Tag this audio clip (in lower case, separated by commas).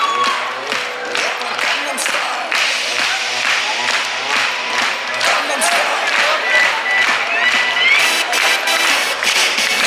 music, cheering